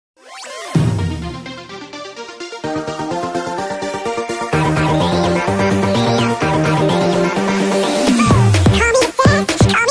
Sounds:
music

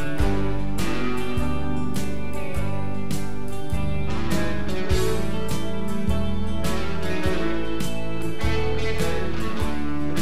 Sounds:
music, country

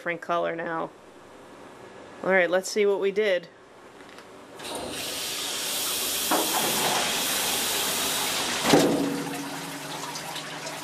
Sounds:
speech

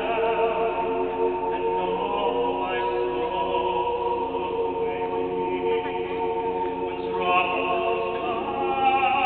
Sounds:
speech, choir, male singing

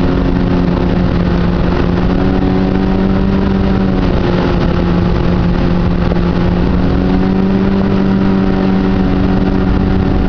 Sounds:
water vehicle, vehicle, motorboat

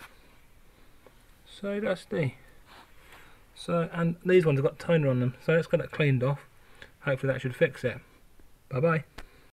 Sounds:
speech

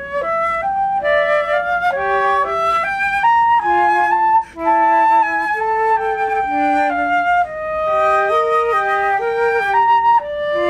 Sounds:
playing flute

